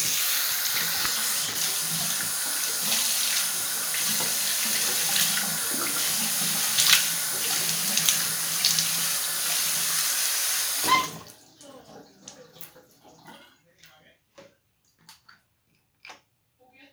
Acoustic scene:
restroom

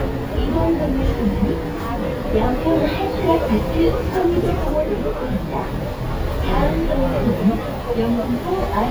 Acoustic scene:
bus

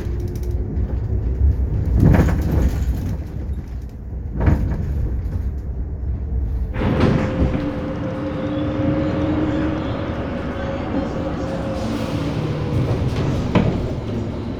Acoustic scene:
bus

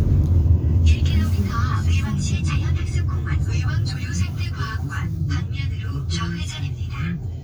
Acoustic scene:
car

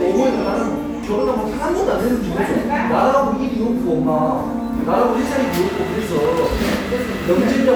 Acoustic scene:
cafe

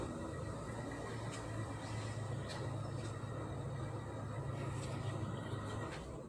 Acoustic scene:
residential area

